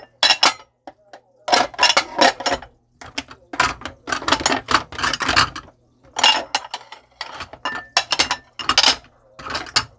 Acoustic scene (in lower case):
kitchen